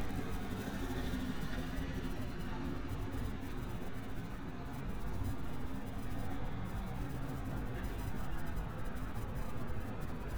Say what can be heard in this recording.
medium-sounding engine